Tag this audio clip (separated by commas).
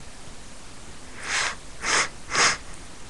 Respiratory sounds